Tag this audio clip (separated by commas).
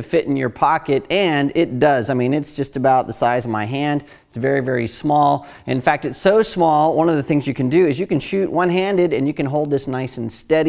Speech